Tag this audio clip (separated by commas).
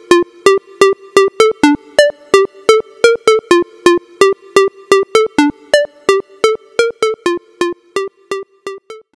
Music